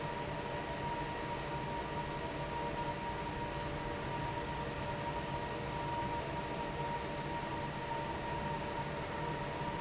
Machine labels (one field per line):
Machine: fan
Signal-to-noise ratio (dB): -6 dB